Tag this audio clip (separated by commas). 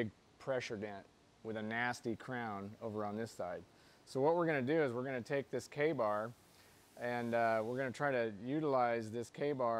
Speech